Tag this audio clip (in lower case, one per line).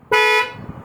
vehicle horn
vehicle
car
alarm
motor vehicle (road)